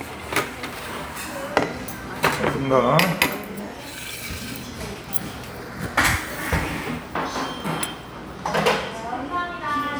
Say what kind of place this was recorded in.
restaurant